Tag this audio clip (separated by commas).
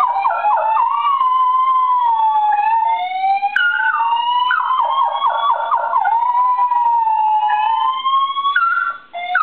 Domestic animals, Bow-wow, Dog, Yip, Animal, Whimper (dog)